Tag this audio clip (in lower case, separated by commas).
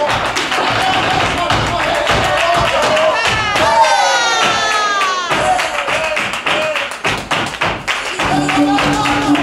speech, tap, music